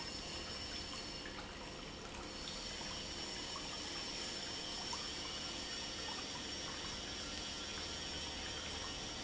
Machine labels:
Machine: pump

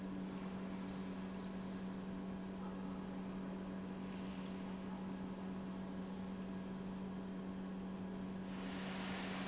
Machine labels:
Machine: pump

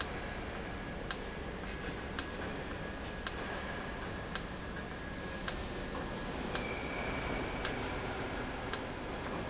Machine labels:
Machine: valve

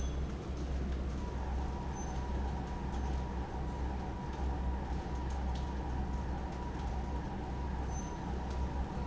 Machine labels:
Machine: fan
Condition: abnormal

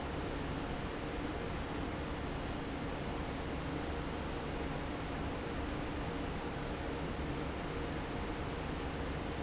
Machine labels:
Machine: fan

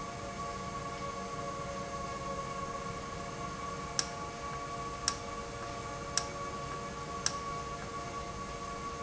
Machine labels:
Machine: valve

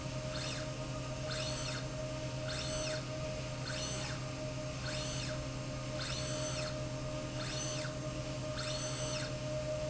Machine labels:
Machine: slide rail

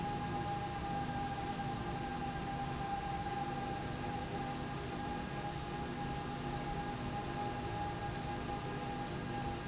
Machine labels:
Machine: slide rail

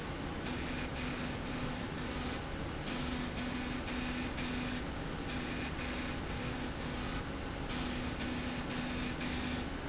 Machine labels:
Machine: slide rail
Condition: abnormal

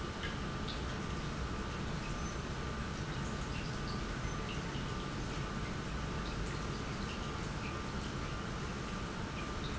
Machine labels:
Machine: pump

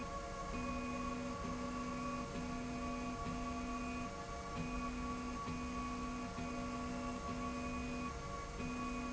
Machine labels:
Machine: slide rail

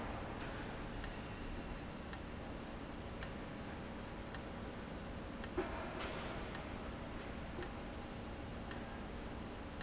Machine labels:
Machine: valve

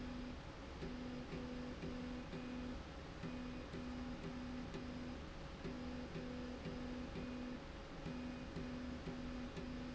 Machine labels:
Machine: slide rail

